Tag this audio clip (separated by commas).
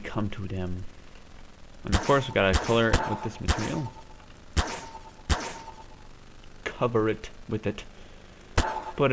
Speech